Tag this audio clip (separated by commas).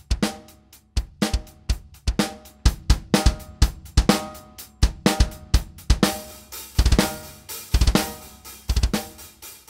playing bass drum